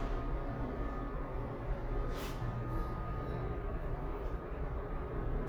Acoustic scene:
elevator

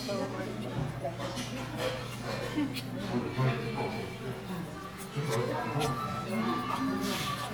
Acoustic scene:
crowded indoor space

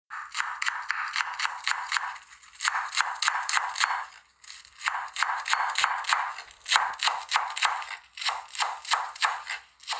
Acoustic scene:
kitchen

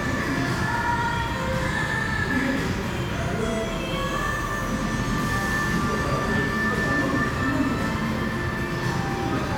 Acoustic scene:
cafe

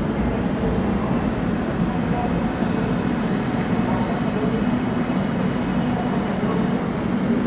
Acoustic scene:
subway station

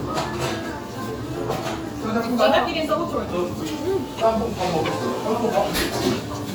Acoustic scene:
restaurant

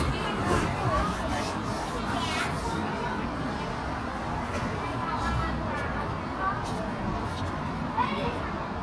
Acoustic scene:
park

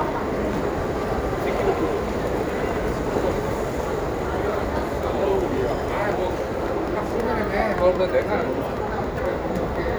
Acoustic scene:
crowded indoor space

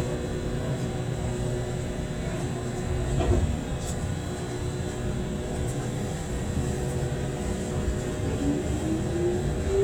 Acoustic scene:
subway train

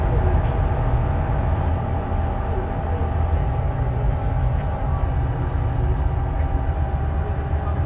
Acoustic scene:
bus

